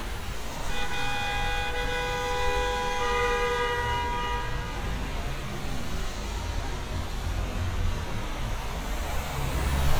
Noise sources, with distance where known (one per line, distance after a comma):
engine of unclear size